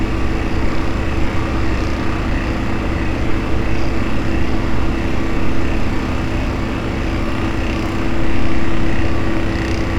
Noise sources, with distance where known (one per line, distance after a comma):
unidentified impact machinery, near